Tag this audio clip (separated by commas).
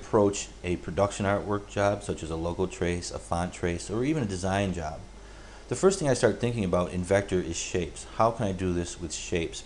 Speech